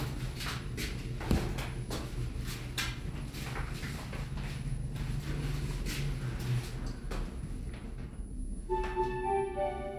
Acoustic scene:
elevator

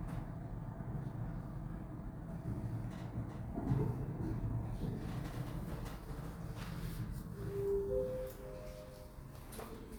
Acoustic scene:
elevator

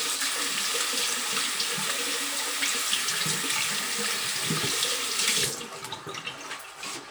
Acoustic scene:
restroom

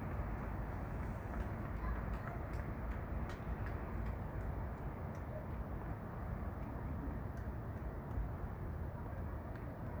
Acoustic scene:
residential area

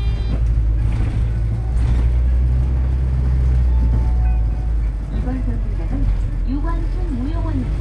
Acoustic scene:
bus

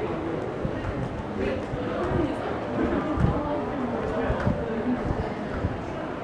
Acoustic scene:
crowded indoor space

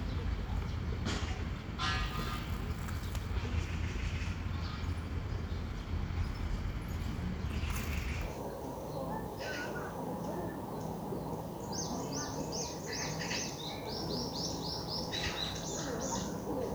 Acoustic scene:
park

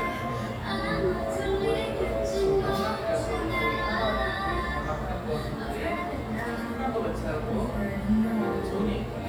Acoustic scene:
cafe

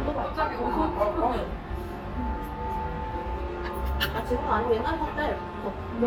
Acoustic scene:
restaurant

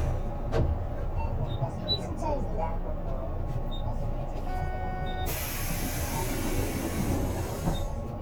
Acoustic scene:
bus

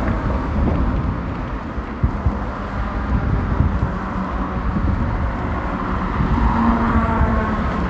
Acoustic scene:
street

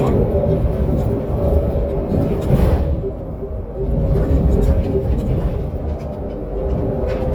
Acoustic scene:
bus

